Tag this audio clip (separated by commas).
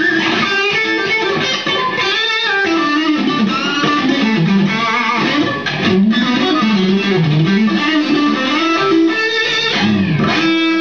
Plucked string instrument, Musical instrument, Blues, Music, Guitar, Strum